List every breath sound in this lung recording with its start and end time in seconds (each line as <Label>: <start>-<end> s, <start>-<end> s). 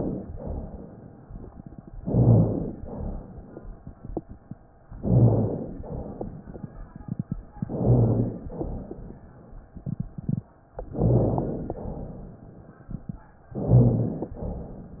Inhalation: 1.99-2.81 s, 4.93-5.75 s, 7.65-8.46 s, 10.93-11.75 s, 13.57-14.38 s
Exhalation: 0.36-1.22 s, 2.79-3.61 s, 5.81-6.62 s, 8.46-9.28 s, 11.78-12.60 s, 14.42-15.00 s
Rhonchi: 1.99-2.81 s, 2.87-3.24 s, 4.93-5.75 s, 7.65-8.46 s, 8.56-8.93 s, 10.93-11.75 s, 13.57-14.38 s, 14.42-14.79 s